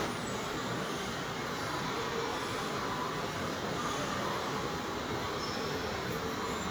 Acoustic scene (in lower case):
subway station